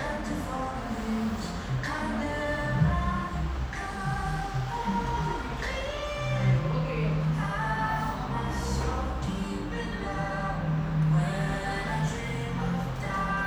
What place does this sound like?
cafe